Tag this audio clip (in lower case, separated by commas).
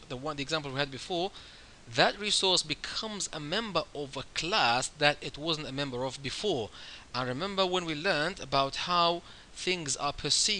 speech